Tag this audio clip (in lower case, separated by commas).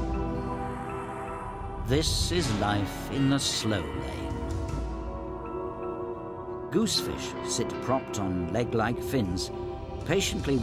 music, speech